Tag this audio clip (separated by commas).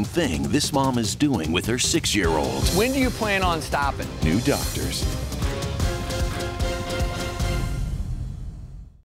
Music, Speech